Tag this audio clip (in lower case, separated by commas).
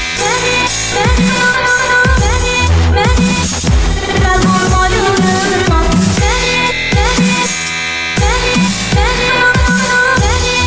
music, electronic music, dubstep